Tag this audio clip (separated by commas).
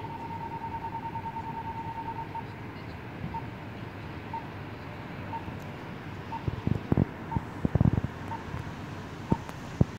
Sound effect